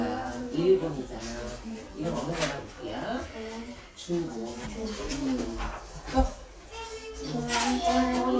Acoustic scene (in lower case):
crowded indoor space